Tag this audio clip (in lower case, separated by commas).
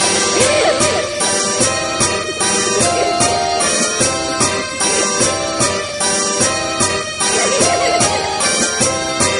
music